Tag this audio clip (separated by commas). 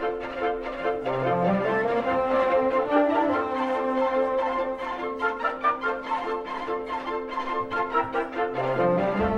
Orchestra, Musical instrument, Music, Plucked string instrument